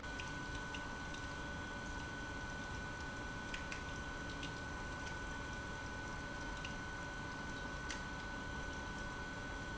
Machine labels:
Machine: pump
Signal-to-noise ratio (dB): 6 dB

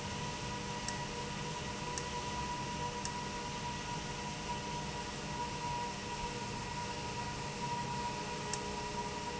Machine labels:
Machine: valve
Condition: abnormal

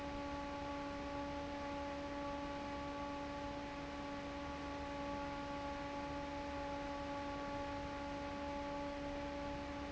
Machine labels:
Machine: fan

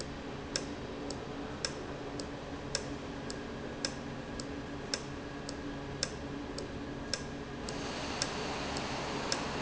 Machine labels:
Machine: valve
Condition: normal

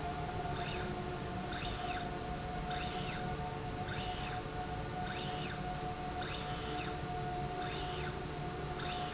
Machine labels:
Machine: slide rail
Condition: normal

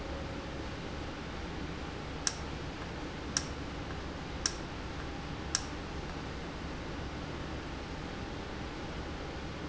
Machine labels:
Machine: valve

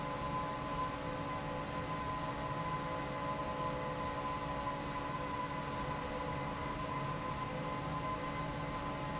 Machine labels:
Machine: fan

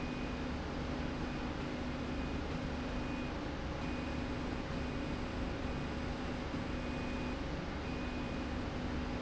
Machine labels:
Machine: slide rail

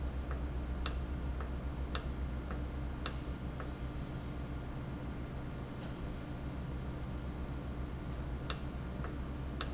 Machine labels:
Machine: valve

